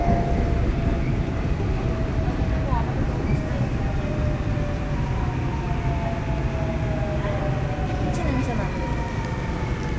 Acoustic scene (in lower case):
subway train